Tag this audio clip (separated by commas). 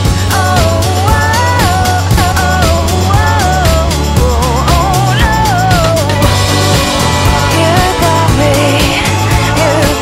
Independent music